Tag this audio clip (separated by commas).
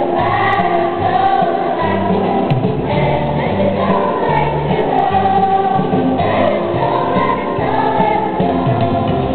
Choir, Music